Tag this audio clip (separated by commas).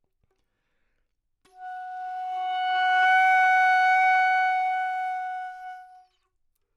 Wind instrument, Music, Musical instrument